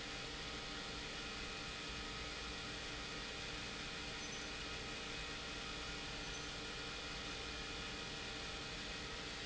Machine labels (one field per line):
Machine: pump